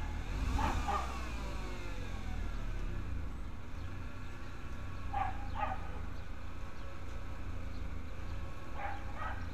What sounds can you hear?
dog barking or whining